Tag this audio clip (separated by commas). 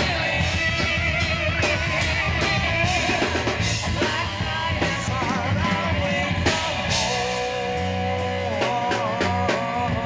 Musical instrument, Guitar, Strum, Electric guitar, Music, Bass guitar, Plucked string instrument